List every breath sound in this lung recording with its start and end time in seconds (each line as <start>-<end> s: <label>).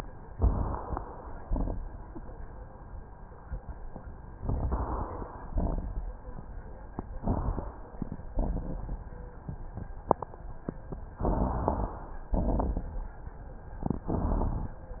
0.34-0.97 s: inhalation
0.34-0.97 s: crackles
1.39-2.01 s: exhalation
1.39-2.01 s: crackles
4.36-5.28 s: inhalation
4.36-5.28 s: crackles
5.54-6.02 s: exhalation
5.54-6.02 s: crackles
7.21-7.69 s: inhalation
7.21-7.69 s: crackles
8.29-9.03 s: exhalation
8.29-9.03 s: crackles
11.23-11.97 s: inhalation
11.23-11.97 s: crackles
12.35-13.04 s: exhalation
12.35-13.04 s: crackles
14.06-14.74 s: inhalation
14.06-14.74 s: crackles